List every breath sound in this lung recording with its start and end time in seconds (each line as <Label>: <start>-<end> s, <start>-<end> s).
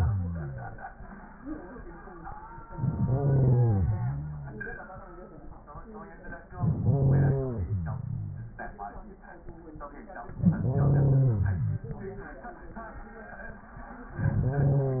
Inhalation: 2.67-4.85 s, 6.54-8.71 s, 10.32-12.50 s, 14.08-15.00 s